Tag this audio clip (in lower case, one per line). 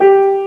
keyboard (musical)
piano
music
musical instrument